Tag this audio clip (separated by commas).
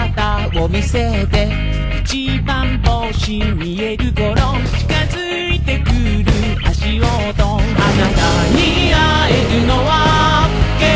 Music